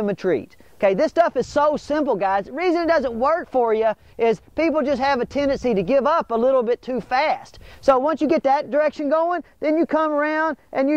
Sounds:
speech

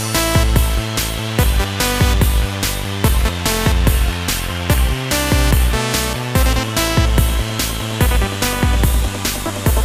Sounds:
music, techno

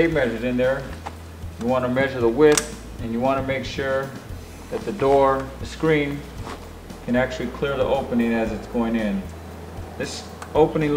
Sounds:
speech, music

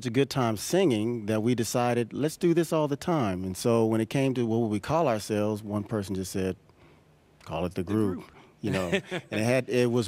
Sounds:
speech

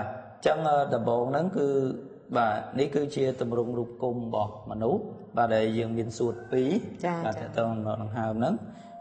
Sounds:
speech

